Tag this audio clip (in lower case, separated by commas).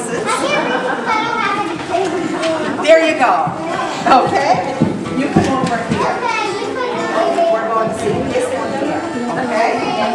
speech, music